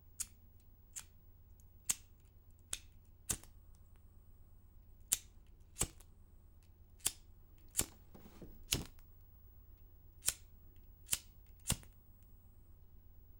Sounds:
fire

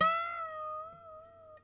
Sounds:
music, musical instrument, harp

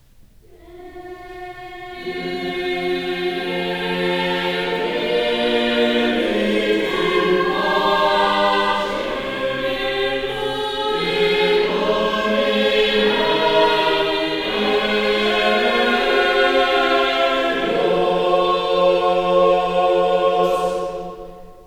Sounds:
musical instrument, singing, human voice, music

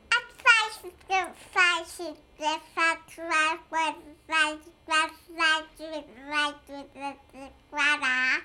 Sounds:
human voice, speech

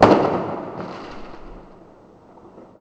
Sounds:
fireworks, explosion

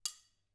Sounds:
cutlery, domestic sounds

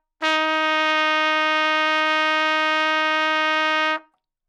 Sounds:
musical instrument, brass instrument, music, trumpet

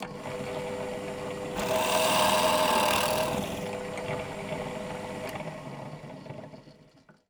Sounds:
tools, power tool, engine, drill, mechanisms

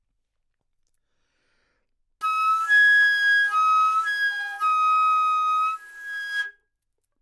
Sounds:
woodwind instrument, music, musical instrument

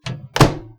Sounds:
slam, door, microwave oven, domestic sounds

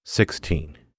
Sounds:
speech, human voice

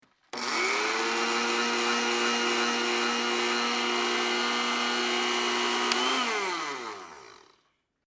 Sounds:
home sounds

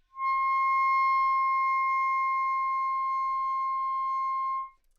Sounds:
wind instrument, musical instrument, music

